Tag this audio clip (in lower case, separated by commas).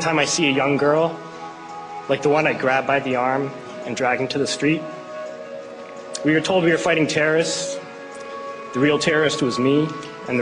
male speech, speech